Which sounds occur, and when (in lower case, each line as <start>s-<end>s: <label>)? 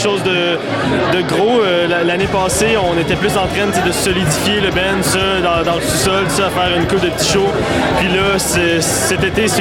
0.0s-0.6s: man speaking
0.0s-9.6s: speech noise
1.0s-7.4s: man speaking
8.0s-9.6s: man speaking